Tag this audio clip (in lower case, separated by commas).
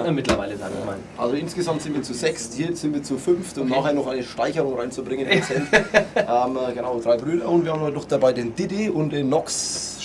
speech